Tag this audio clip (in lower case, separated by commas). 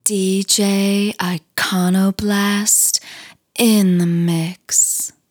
speech, female speech, human voice